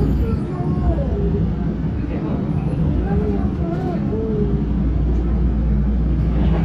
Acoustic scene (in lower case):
subway train